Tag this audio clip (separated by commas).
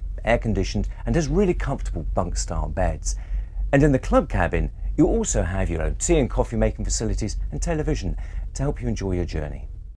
Speech